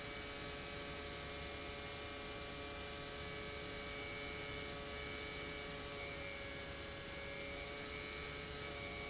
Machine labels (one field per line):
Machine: pump